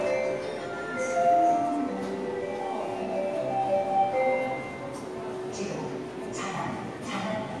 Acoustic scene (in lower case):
subway station